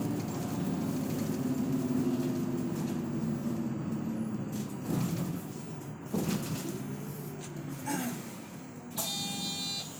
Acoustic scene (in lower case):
bus